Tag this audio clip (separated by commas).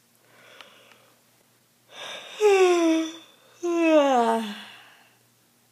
Human voice